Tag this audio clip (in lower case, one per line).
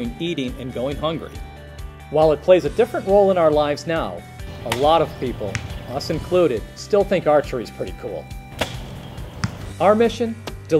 arrow